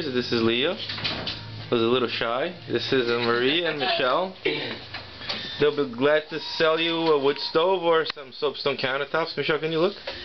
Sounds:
speech

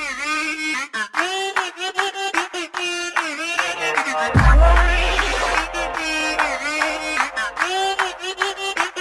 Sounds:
music

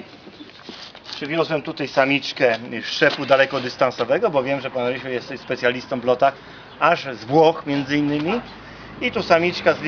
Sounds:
outside, urban or man-made
speech

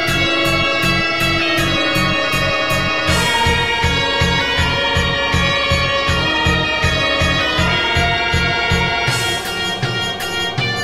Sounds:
music

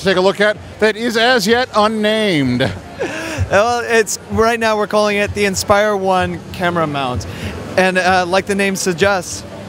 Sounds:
speech

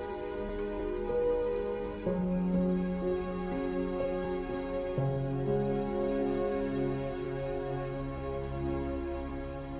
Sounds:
music

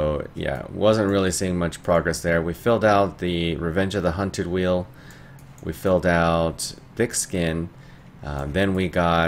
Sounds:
speech

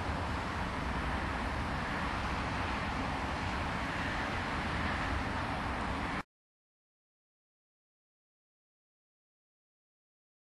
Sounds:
vehicle

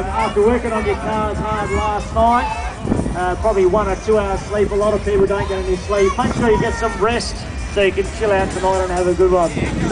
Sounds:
music
speech

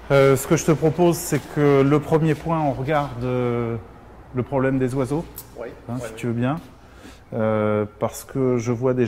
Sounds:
speech

